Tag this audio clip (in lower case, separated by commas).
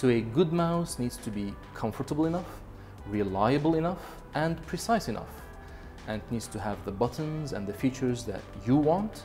music, speech